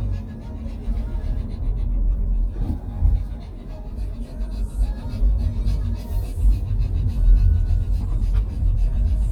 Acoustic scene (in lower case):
car